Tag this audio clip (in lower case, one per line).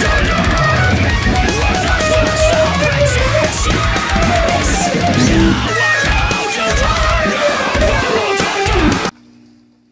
plucked string instrument
music
musical instrument